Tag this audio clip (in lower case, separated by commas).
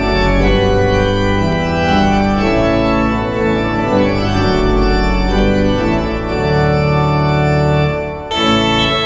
musical instrument, music